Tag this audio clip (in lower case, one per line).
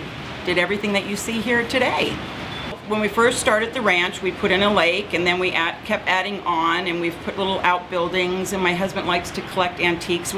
speech